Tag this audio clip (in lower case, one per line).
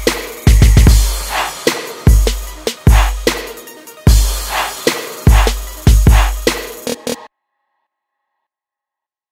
music